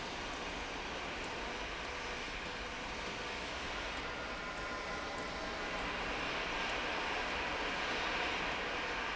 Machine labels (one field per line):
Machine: slide rail